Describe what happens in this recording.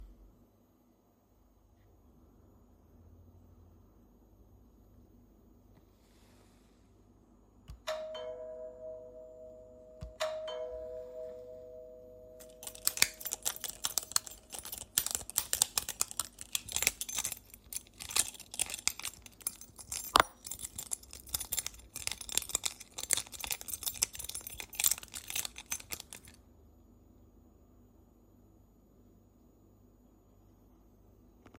The phone was on a shelf. The doorbell rang twice, and then I picked up my keys and rattled them for a few seconds.